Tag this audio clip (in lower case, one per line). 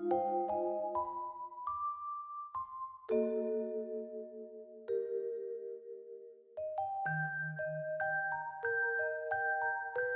music